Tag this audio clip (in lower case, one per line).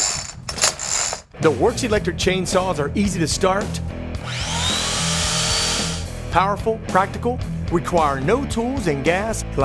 speech
music
tools
power tool
chainsaw